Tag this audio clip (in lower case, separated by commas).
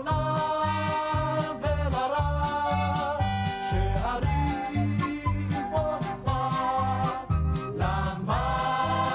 middle eastern music, soul music, choir, music